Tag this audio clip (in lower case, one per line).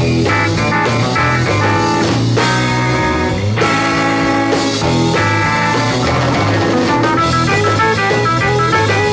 music
electric guitar
musical instrument
guitar
bass guitar
strum
plucked string instrument